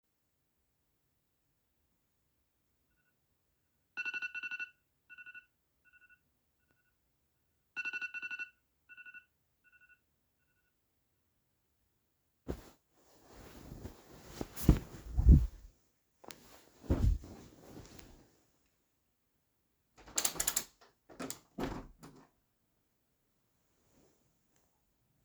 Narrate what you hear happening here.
the alarm on my phone went off in the morning, I stand up from my bed and open the window